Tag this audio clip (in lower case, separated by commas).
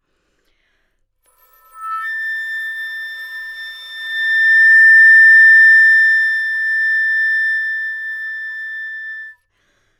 music, wind instrument, musical instrument